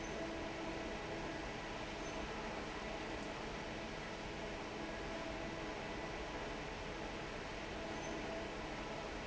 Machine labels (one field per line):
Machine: fan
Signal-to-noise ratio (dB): 6 dB